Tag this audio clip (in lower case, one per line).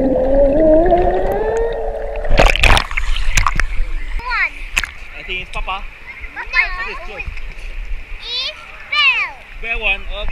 speech